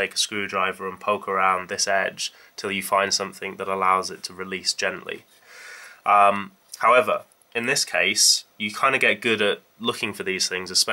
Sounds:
speech

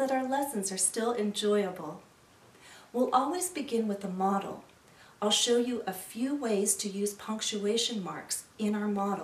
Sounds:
speech

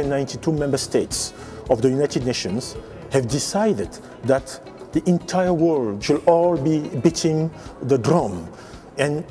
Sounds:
musical instrument, music, speech

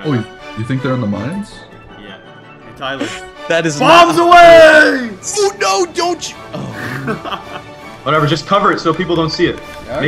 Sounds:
background music, speech, music

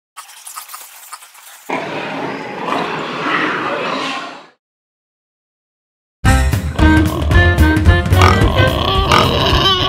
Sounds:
pig, music, animal

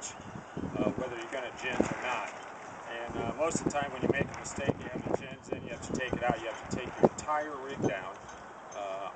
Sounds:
speech

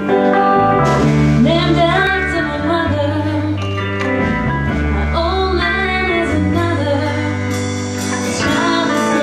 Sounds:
music

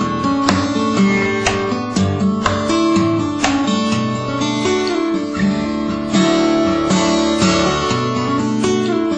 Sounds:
strum, plucked string instrument, music, guitar, musical instrument

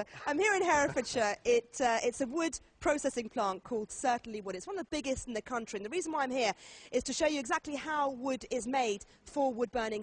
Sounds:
speech

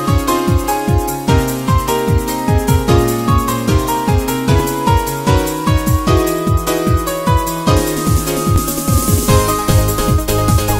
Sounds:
music, disco, dance music

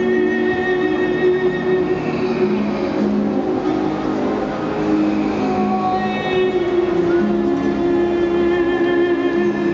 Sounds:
music, outside, urban or man-made

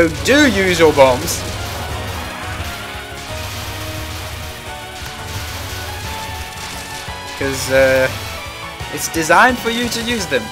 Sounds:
music, speech

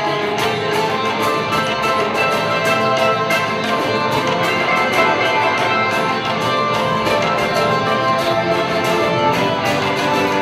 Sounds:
blues, music

